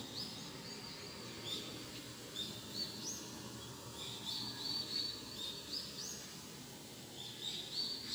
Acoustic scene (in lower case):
park